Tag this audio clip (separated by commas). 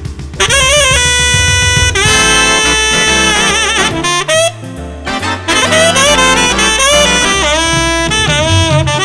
woodwind instrument